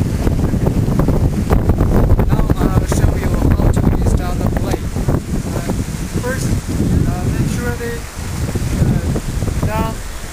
Heavy wind in a microphone with a gentleman speaking in the background